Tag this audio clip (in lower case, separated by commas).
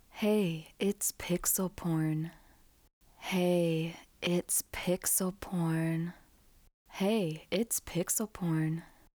woman speaking, speech, human voice